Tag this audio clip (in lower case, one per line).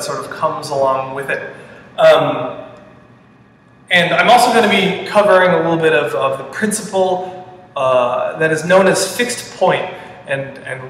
speech